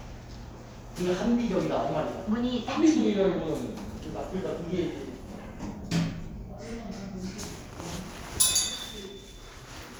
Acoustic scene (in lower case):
elevator